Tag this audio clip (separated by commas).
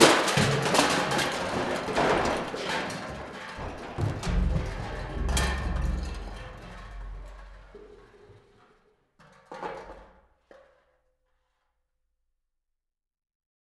Crushing